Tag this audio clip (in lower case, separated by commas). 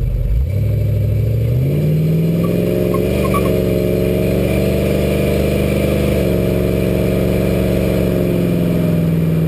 vehicle, car, vroom